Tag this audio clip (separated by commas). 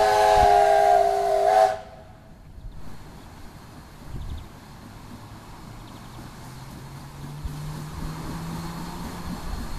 Steam whistle, Steam